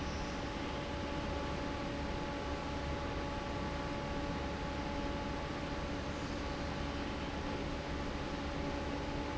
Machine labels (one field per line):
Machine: fan